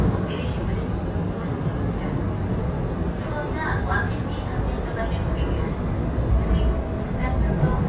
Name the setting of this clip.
subway train